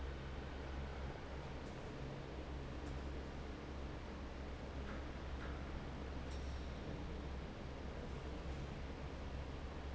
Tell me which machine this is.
fan